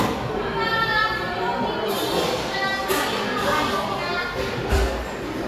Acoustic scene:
cafe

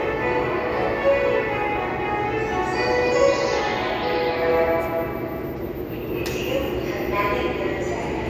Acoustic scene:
subway station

